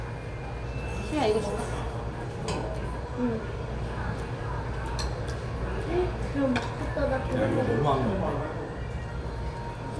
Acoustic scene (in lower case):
restaurant